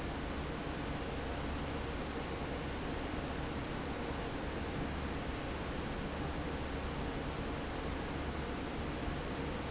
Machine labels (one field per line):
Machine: fan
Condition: normal